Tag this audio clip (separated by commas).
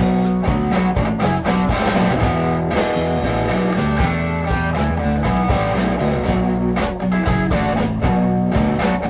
Guitar, Musical instrument, Blues, Rock music, Music